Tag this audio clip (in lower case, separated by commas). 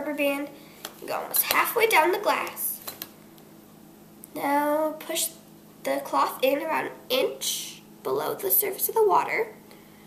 speech